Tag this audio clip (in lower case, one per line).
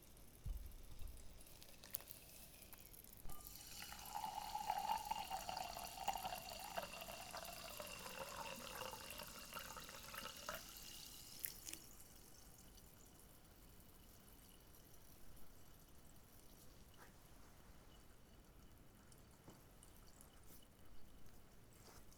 fill (with liquid)
liquid